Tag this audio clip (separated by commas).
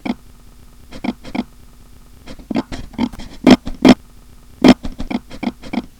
Animal